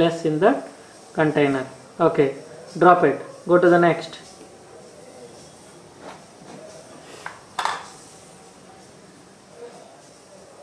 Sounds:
Speech

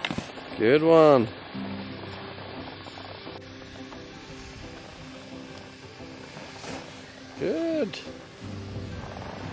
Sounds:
skiing

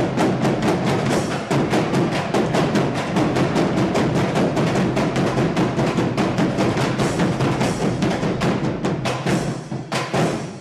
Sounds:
Music

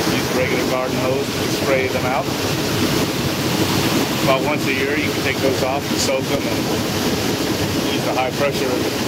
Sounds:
Speech

